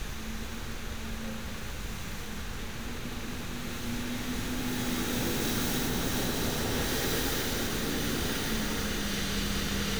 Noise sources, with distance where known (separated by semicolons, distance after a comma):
large-sounding engine